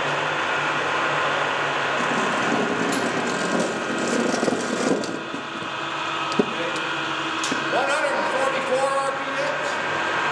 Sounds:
Engine, Heavy engine (low frequency)

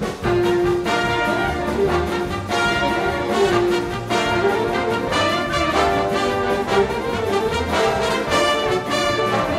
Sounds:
Music, Swing music

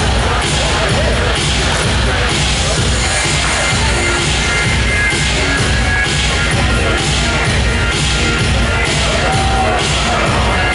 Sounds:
Electronic music, Music, Dubstep

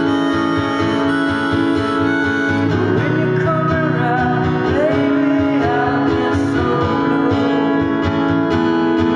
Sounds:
Bluegrass, Singing

